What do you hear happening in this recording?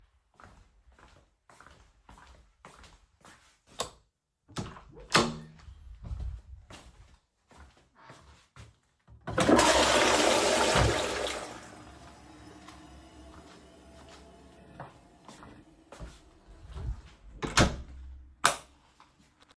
I walked to the bathroom, turned the light switch on, flushed the toilet, turned the switch off, and closed the door.